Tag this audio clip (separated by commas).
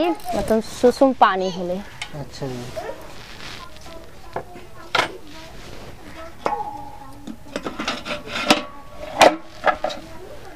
Speech